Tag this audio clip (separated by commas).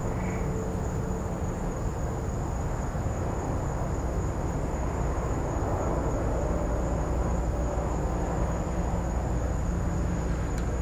Frog, Wild animals, Animal, Insect